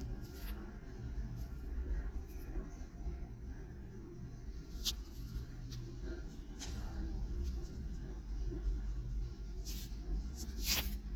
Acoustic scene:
elevator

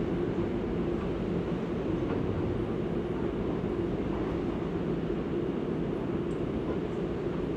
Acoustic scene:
subway train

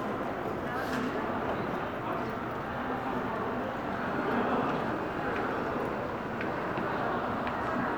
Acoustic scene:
crowded indoor space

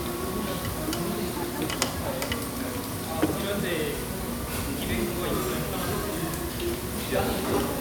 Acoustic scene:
restaurant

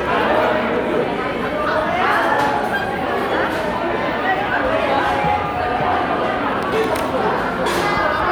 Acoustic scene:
crowded indoor space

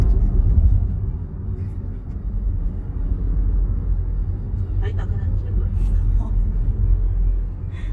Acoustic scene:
car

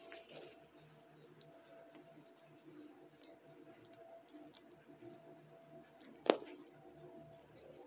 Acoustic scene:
elevator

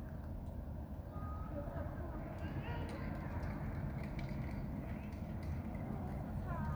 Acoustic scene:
residential area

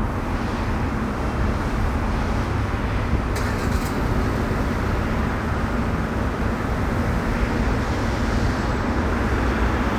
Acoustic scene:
street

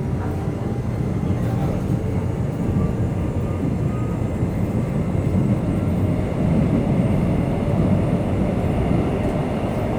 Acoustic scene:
subway train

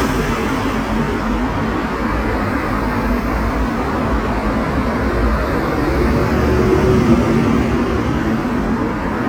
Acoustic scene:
street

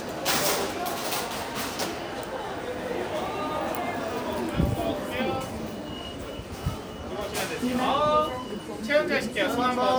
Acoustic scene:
crowded indoor space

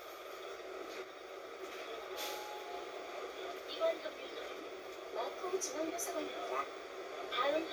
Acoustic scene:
bus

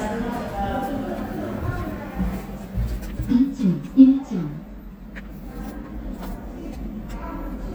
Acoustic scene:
elevator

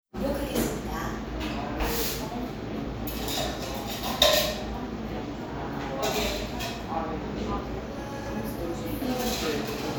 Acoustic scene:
cafe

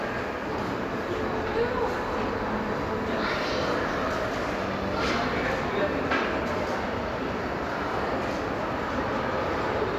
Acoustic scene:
crowded indoor space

